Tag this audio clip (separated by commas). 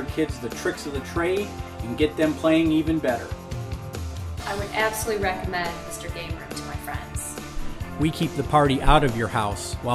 Speech, Music